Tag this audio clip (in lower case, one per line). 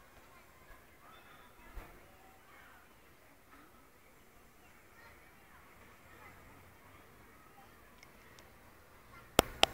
speech